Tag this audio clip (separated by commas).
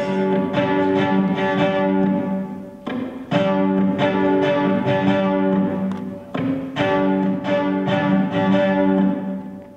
Music